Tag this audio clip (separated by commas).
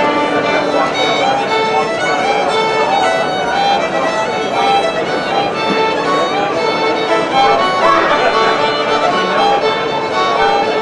Bowed string instrument, fiddle